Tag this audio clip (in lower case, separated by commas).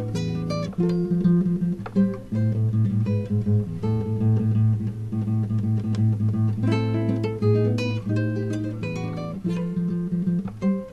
musical instrument, guitar, music, strum, plucked string instrument